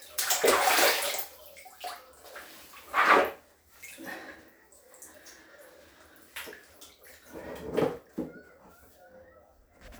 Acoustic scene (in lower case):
restroom